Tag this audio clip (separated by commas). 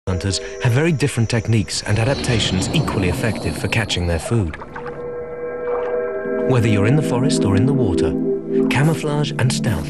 Music, Speech